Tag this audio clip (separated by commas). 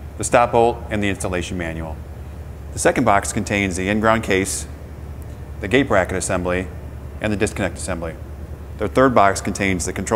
Speech